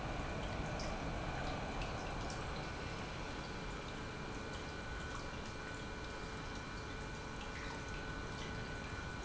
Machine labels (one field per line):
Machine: pump